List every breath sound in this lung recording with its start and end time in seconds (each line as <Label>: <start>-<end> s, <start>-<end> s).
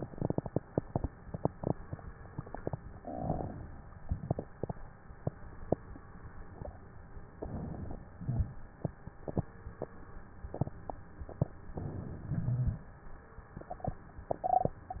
Inhalation: 7.30-8.15 s, 11.67-12.27 s
Exhalation: 8.18-8.79 s, 12.26-12.97 s
Wheeze: 12.26-12.97 s
Crackles: 7.30-8.15 s, 8.18-8.79 s